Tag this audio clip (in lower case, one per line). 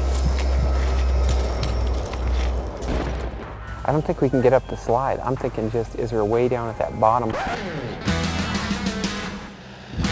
music
speech